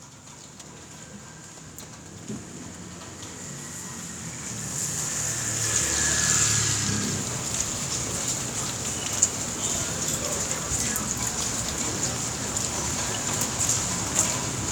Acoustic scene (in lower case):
residential area